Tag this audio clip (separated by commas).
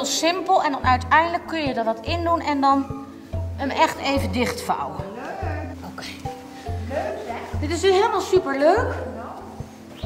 Music, Speech